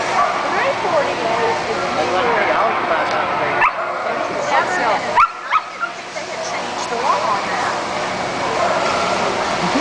Several people talking with dogs barking in the background